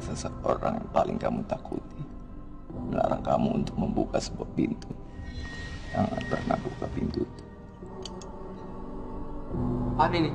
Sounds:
Music, Speech

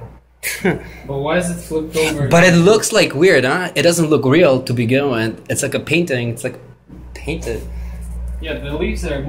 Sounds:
Speech

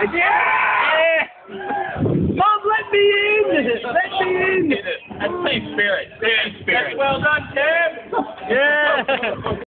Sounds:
Speech

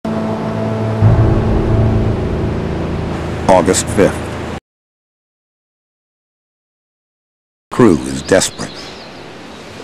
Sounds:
Silence, Music, outside, rural or natural, Speech

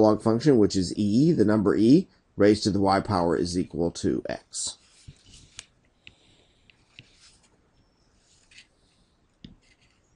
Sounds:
Speech

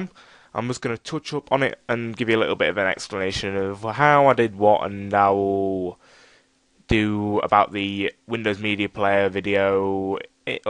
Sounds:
Speech

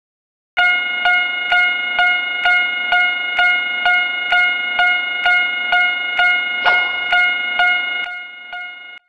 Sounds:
inside a large room or hall

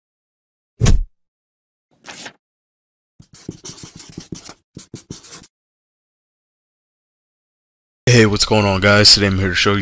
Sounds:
inside a small room, Speech

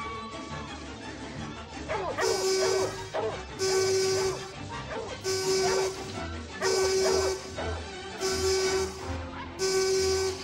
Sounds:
Music

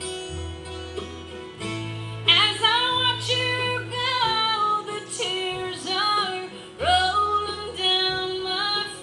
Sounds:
Music, Female singing, Country

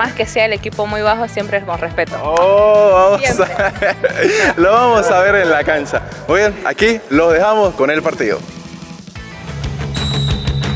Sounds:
playing volleyball

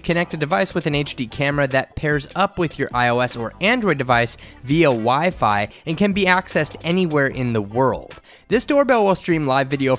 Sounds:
Music, Speech

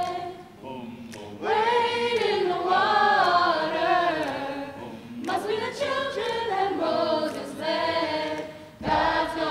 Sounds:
Choir

